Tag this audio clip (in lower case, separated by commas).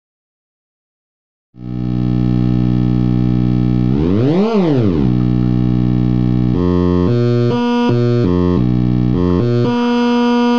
synthesizer